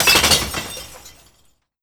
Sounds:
shatter, glass

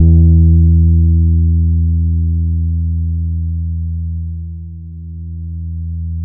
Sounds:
plucked string instrument, guitar, bass guitar, music, musical instrument

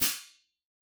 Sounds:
musical instrument, hi-hat, percussion, cymbal, music

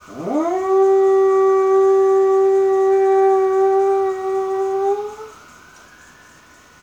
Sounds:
pets, dog, animal

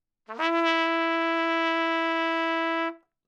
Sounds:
brass instrument, trumpet, musical instrument, music

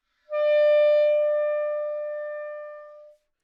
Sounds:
musical instrument, music, woodwind instrument

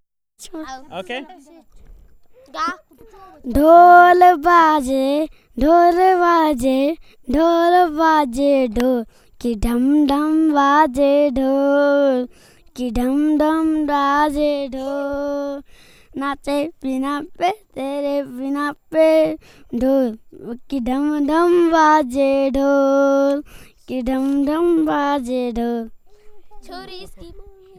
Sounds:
singing, human voice

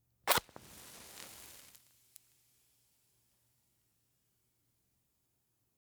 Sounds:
fire

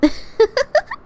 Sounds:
laughter, human voice, giggle

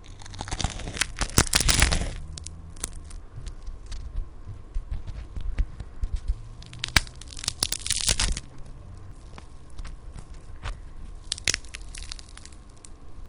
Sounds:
crack

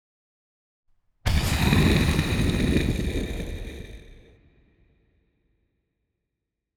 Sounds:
boom, explosion

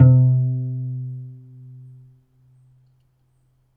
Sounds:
bowed string instrument, musical instrument, music

